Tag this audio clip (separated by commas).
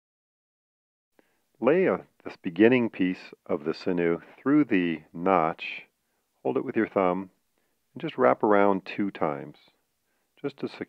Speech